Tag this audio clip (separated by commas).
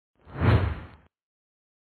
swish